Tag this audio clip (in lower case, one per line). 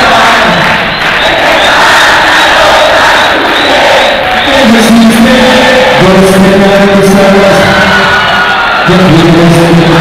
vocal music
speech
a capella